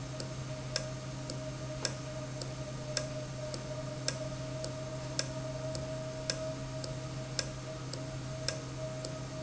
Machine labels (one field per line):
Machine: valve